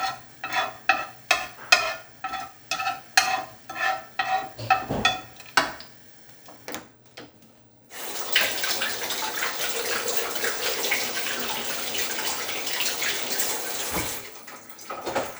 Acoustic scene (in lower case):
kitchen